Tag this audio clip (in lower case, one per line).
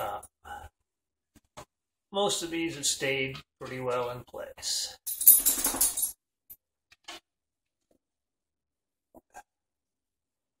speech